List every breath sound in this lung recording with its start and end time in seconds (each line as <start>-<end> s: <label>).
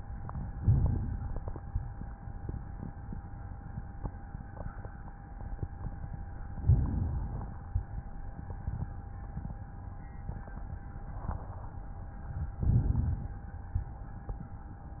0.59-1.56 s: inhalation
6.55-7.51 s: inhalation
12.62-13.59 s: inhalation